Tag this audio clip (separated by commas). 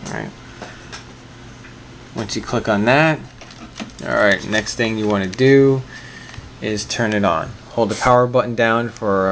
Speech